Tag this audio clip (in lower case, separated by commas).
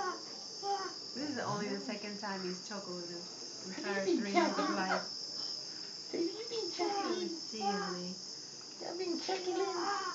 speech, snort